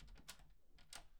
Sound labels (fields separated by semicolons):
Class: door; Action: opening; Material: wooden